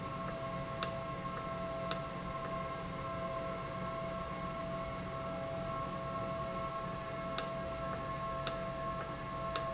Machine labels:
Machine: valve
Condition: normal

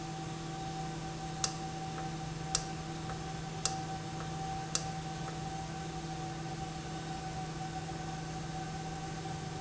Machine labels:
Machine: valve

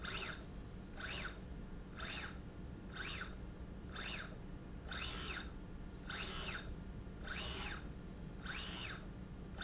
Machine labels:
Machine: slide rail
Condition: normal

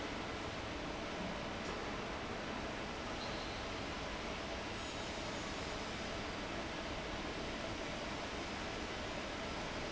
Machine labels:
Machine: fan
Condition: abnormal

